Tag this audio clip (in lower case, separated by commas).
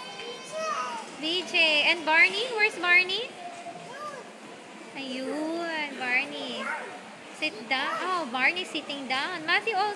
speech